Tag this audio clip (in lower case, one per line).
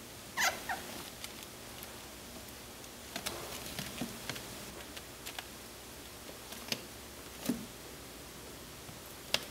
chinchilla barking